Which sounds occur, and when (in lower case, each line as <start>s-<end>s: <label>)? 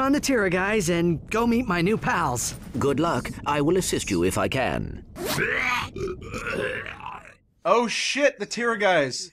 0.0s-1.1s: male speech
0.0s-9.3s: background noise
0.0s-9.3s: conversation
1.3s-2.5s: male speech
2.0s-2.7s: surface contact
2.7s-3.3s: male speech
3.0s-3.2s: tweet
3.4s-5.0s: male speech
4.0s-4.3s: tweet
5.1s-5.4s: sound effect
5.3s-7.4s: grunt
7.6s-9.3s: male speech
8.3s-8.6s: tweet